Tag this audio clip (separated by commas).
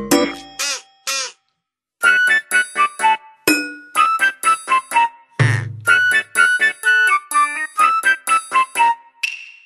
Duck, Quack, Music